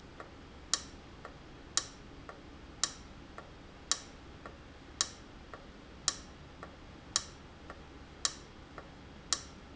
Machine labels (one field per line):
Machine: valve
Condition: abnormal